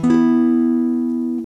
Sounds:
Plucked string instrument, Musical instrument, Music, Guitar, Acoustic guitar, Strum

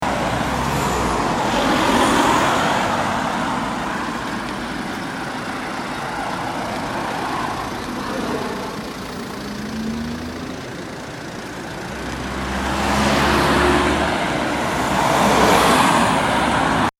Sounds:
Motor vehicle (road), Car passing by, Engine, Car, roadway noise, Vehicle

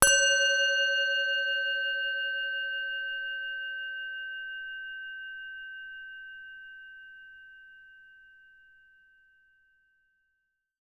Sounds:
Musical instrument, Music

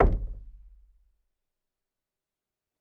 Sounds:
Knock, home sounds, Door

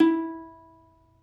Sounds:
Musical instrument, Plucked string instrument, Music

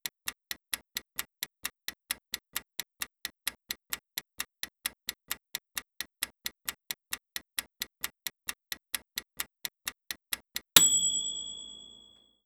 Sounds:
Clock, Mechanisms

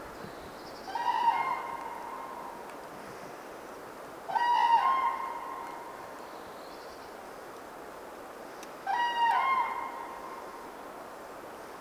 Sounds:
bird call, Animal, Wild animals, Bird

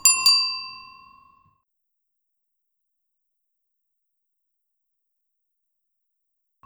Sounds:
Bicycle, Bell, Vehicle, Alarm, Bicycle bell

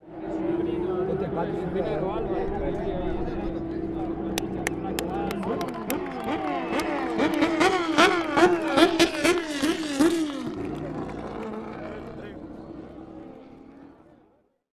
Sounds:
Human group actions, Car, Vehicle, Race car, Accelerating, Motor vehicle (road), Crowd, Engine

